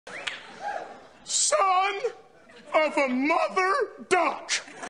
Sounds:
Speech

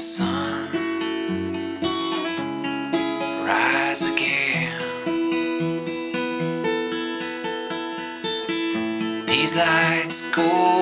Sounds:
Music

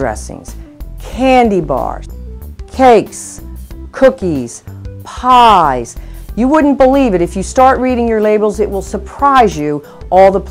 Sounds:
Speech, Music

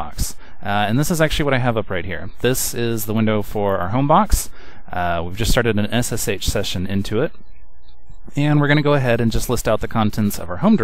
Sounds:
Speech

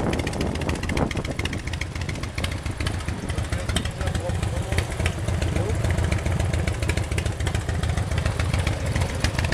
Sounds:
Speech, Motorcycle

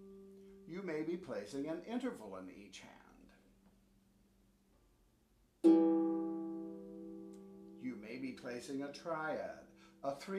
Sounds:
Speech, Harp, Musical instrument, Plucked string instrument, Music

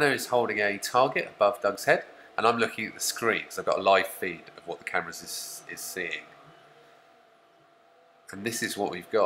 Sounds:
Speech

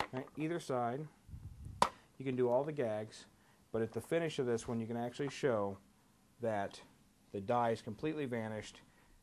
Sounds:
Speech

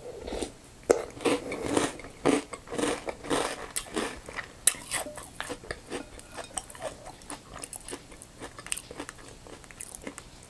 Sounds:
people slurping

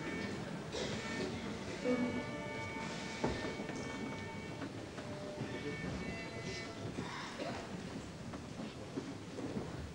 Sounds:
Music

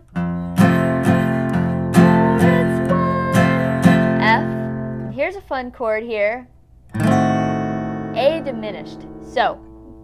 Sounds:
Guitar, Singing, Musical instrument, Plucked string instrument

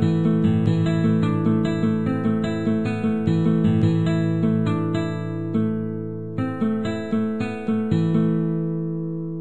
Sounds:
Strum, Music, Guitar, Acoustic guitar, Musical instrument, Plucked string instrument

